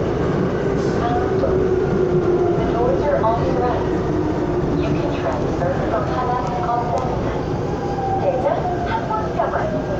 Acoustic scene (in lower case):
subway train